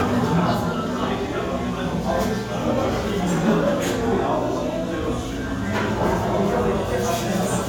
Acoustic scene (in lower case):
restaurant